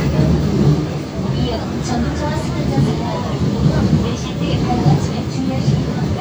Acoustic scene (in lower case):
subway train